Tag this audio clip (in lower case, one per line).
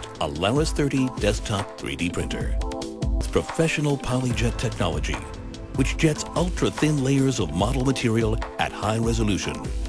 speech
music